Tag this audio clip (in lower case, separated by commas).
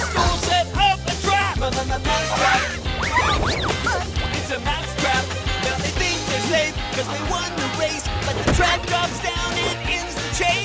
music